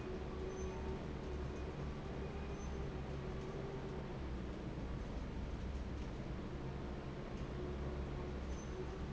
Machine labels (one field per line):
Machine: fan